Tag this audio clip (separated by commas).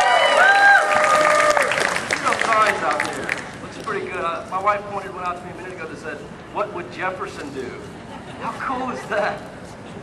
Speech, monologue, man speaking